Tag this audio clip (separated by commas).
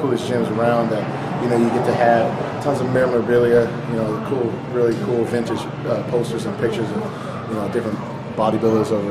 Speech